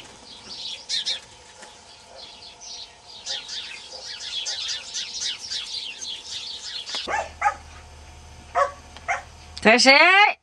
Birds are chirping then a dog barks and finally a woman speaks